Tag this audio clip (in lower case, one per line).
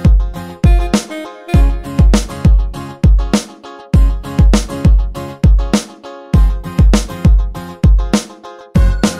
music